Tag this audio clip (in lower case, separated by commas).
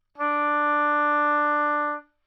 music, woodwind instrument, musical instrument